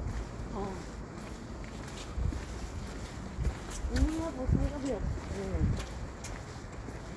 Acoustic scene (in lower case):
street